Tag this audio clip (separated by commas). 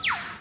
Bird, Animal, Wild animals